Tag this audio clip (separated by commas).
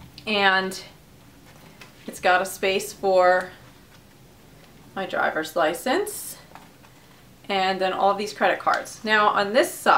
Speech, inside a small room